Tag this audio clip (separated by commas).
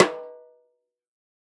Percussion, Snare drum, Drum, Musical instrument, Music